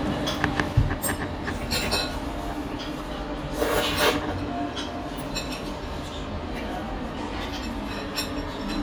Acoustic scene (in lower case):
restaurant